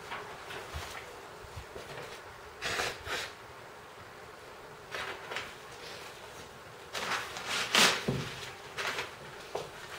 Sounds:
Drawer open or close

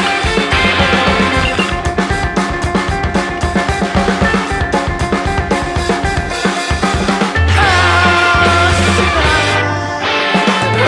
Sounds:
Grunge, Music

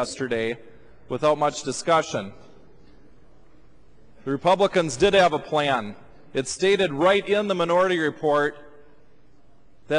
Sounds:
monologue, man speaking, Speech, Speech synthesizer

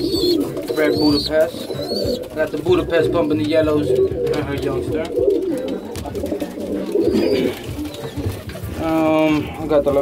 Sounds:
inside a small room, Speech, Bird, Pigeon

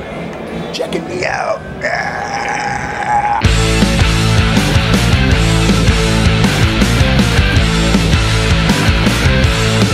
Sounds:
Music, Speech

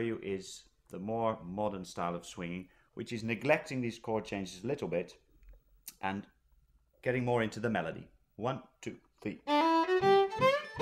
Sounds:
Music, Musical instrument, Speech, fiddle

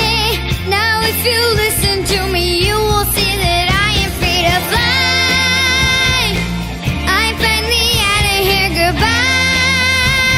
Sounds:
Music, Exciting music

